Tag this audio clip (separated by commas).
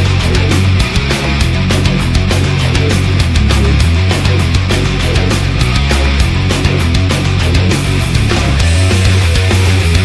Music